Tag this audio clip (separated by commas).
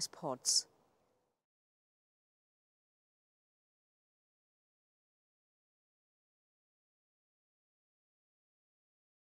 Speech